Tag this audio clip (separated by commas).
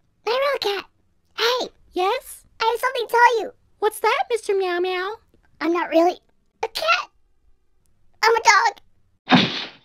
Speech